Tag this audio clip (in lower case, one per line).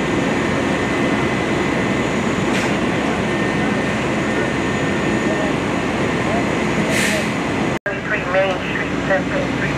wind
fire